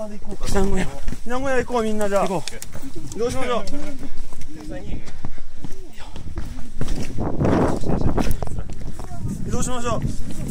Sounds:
volcano explosion

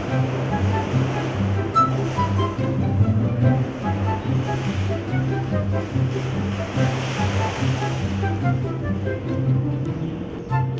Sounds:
Music

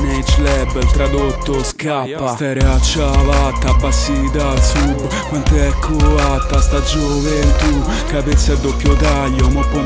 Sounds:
Music, Rapping

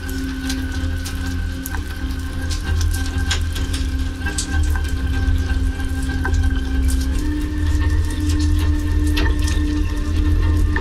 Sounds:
Raindrop, Music

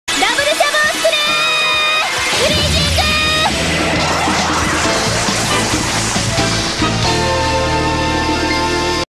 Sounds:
Music, Speech

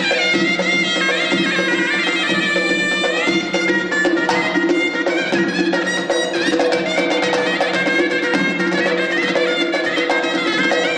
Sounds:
Music, Traditional music

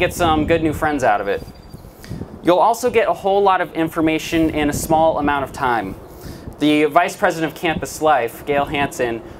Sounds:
Narration, man speaking, Speech

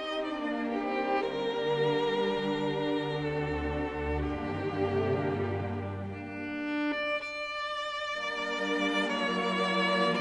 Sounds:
fiddle, Orchestra, Musical instrument, Music

